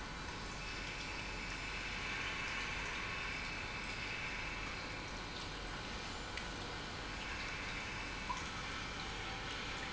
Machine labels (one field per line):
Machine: pump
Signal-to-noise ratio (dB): 0 dB